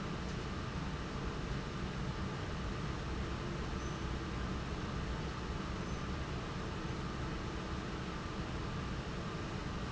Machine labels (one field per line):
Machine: fan